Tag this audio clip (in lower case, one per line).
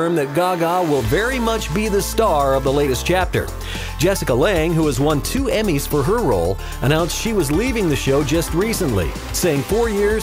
speech
music